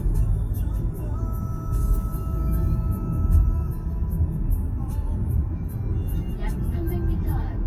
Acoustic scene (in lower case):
car